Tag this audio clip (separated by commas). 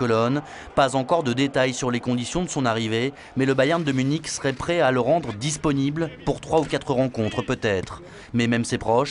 Speech